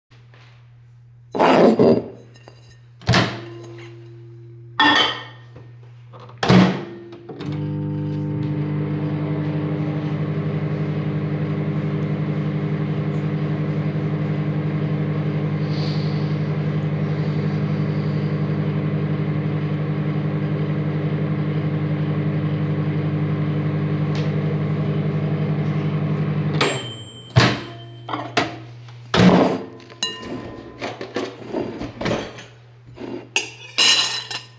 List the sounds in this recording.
cutlery and dishes, microwave, wardrobe or drawer